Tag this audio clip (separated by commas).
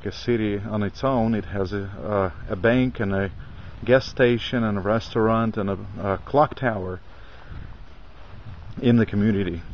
Speech